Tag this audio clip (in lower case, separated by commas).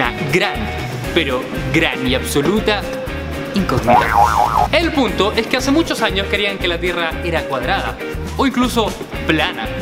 speech, music